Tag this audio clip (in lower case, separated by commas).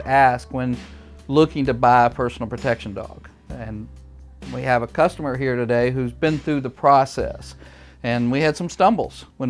music, speech